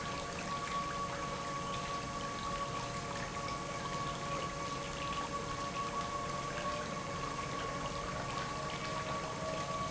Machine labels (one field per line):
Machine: pump